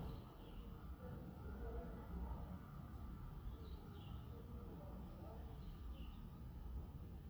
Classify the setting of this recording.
residential area